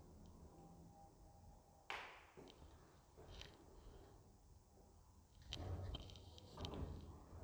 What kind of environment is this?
elevator